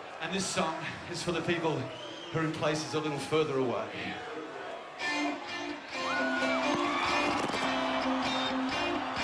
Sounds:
speech
music

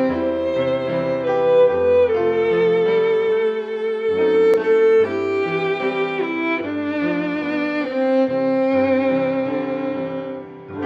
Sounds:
music
musical instrument
fiddle

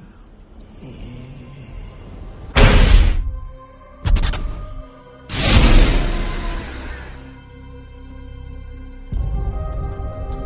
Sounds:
music

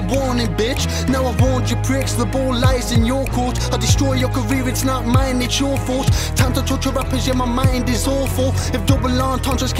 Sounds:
music

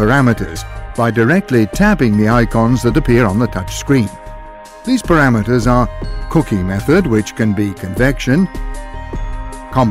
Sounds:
speech
music

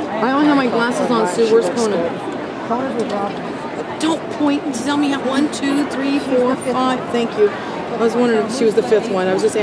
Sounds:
speech

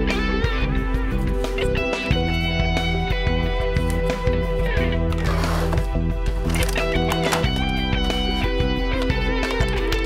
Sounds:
music

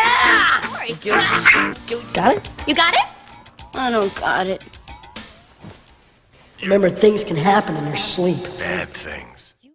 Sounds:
plucked string instrument
speech
guitar
music

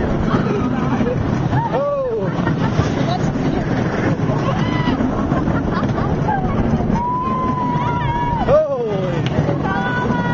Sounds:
speech

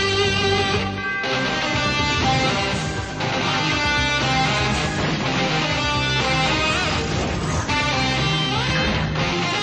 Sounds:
guitar
plucked string instrument
musical instrument
music

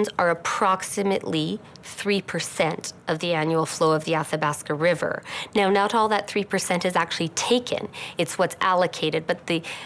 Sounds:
speech

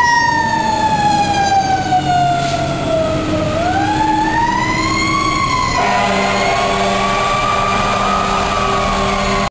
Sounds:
truck
vehicle
fire engine
motor vehicle (road)
emergency vehicle

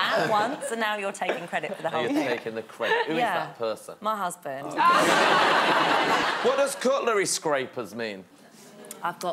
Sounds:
speech

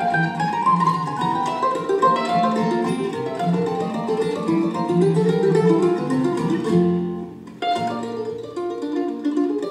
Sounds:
playing mandolin

